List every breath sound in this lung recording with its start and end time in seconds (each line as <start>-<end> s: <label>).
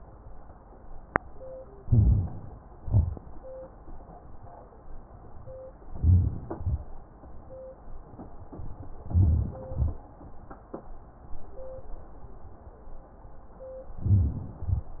1.83-2.28 s: inhalation
1.83-2.28 s: crackles
2.77-3.22 s: exhalation
2.77-3.22 s: crackles
5.90-6.35 s: inhalation
5.90-6.35 s: crackles
6.52-6.88 s: exhalation
9.08-9.59 s: inhalation
9.08-9.59 s: crackles
9.73-10.09 s: exhalation
14.06-14.64 s: inhalation
14.06-14.64 s: crackles
14.61-14.88 s: exhalation